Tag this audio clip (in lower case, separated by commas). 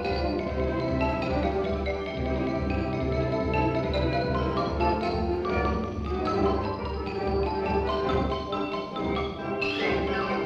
playing marimba